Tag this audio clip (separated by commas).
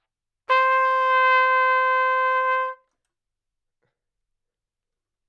Brass instrument, Trumpet, Music, Musical instrument